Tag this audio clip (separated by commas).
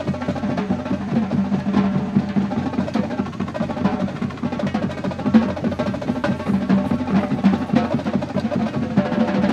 Exciting music, Music